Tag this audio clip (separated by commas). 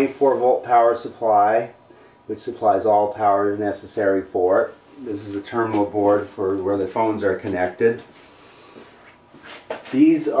Speech